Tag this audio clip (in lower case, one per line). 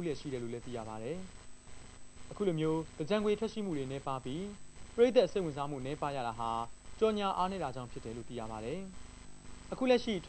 speech